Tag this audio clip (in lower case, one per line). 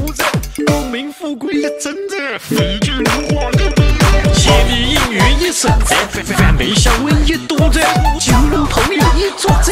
music